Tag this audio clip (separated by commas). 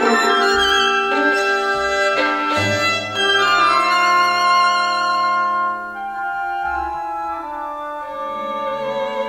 Musical instrument, Violin, Music